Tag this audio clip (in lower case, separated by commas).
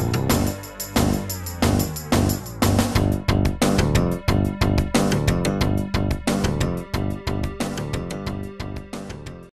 music